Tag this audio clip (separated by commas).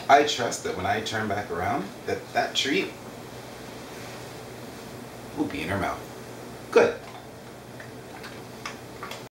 Speech